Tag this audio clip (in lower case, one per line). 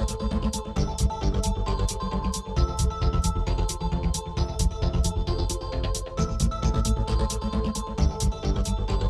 music